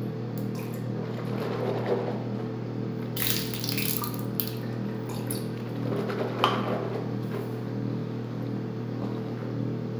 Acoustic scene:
restroom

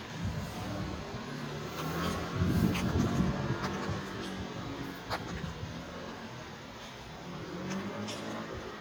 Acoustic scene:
residential area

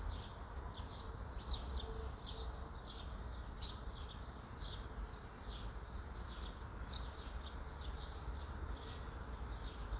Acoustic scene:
park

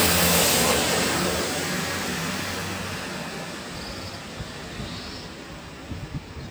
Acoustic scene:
street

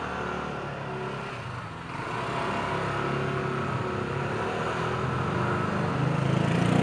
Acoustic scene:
residential area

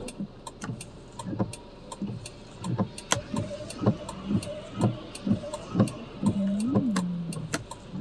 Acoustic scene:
car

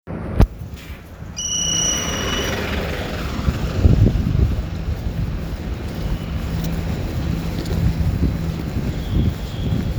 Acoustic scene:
residential area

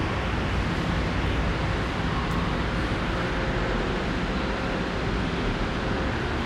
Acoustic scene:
subway station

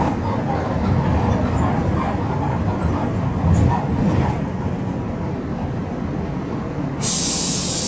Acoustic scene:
bus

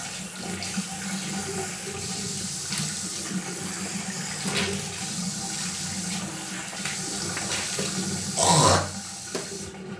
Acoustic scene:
restroom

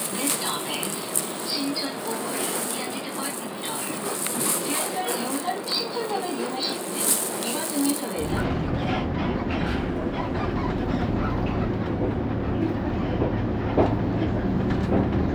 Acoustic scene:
bus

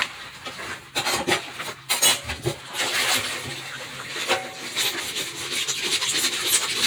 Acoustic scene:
kitchen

